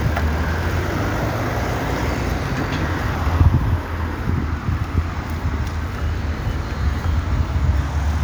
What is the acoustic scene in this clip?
street